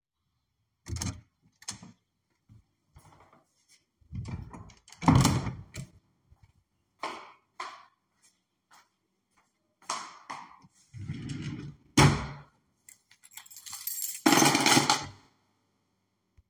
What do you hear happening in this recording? I opend the door to my house, went to the drawer, opend it and put my keychain inside.